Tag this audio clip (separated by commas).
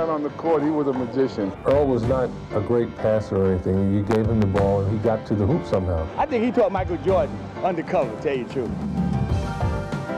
Music, Speech